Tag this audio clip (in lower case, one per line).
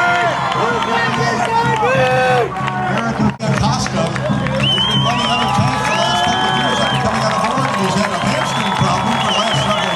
speech